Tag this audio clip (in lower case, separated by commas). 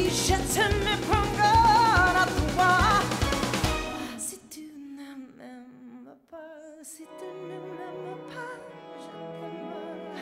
music, opera